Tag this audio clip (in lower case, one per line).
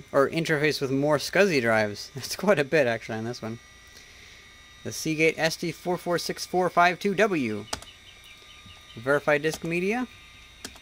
inside a small room
speech